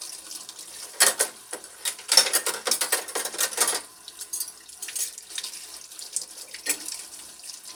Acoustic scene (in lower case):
kitchen